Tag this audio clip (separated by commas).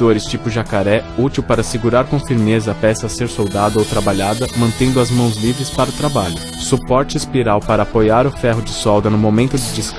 Speech, Music, Tools